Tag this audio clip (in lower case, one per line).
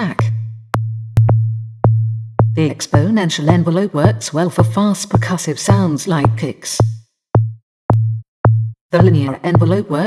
drum
speech
music
drum machine